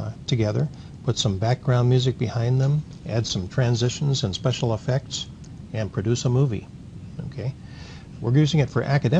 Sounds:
speech

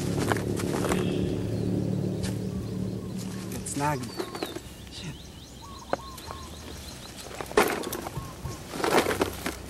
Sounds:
outside, rural or natural, environmental noise, speech

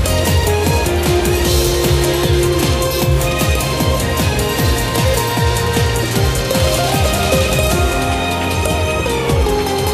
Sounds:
music, background music

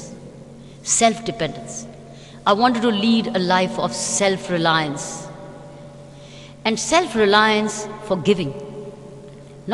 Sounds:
woman speaking, speech, narration

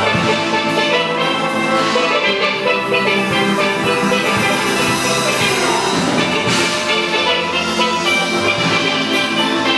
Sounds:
drum, steelpan, musical instrument, drum kit, music, percussion

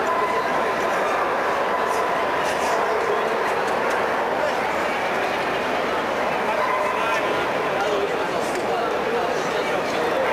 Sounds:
speech

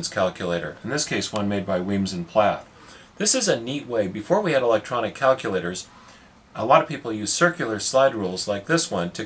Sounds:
speech

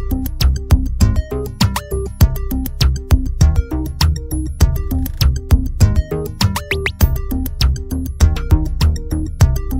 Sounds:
synthesizer, music

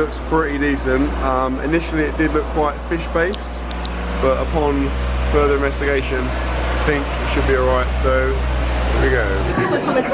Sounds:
speech, outside, urban or man-made

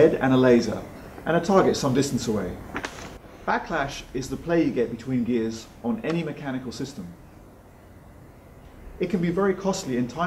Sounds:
speech

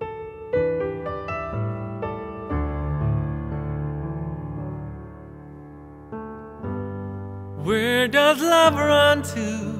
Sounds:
tender music, singing, music

